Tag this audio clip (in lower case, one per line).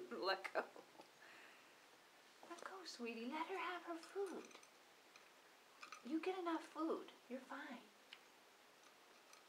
speech